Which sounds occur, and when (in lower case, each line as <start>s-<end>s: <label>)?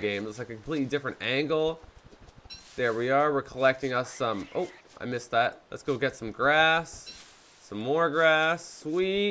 0.0s-1.7s: man speaking
0.0s-9.3s: background noise
0.0s-9.3s: video game sound
1.9s-2.3s: generic impact sounds
2.5s-2.6s: tools
2.5s-3.1s: surface contact
2.7s-4.4s: man speaking
3.4s-5.0s: walk
4.1s-4.7s: animal
4.5s-4.8s: man speaking
4.9s-5.5s: man speaking
5.7s-7.1s: man speaking
5.8s-6.0s: surface contact
7.0s-7.2s: tools
7.1s-7.7s: surface contact
7.7s-9.3s: man speaking
8.8s-9.0s: surface contact